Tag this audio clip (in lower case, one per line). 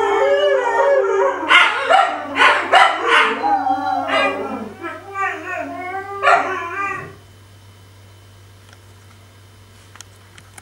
dog howling